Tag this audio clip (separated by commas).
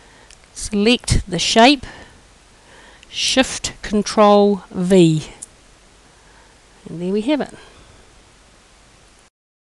Speech